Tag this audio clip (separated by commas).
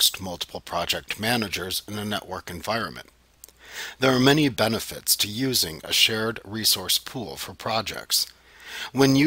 Speech